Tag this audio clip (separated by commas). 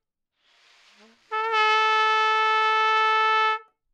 Music, Musical instrument, Brass instrument, Trumpet